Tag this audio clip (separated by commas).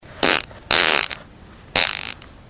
Fart